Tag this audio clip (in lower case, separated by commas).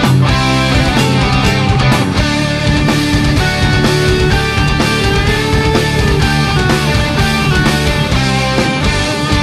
rock music, music, progressive rock, heavy metal